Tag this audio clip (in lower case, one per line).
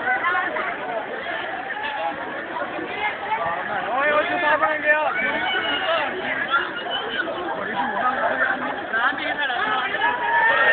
speech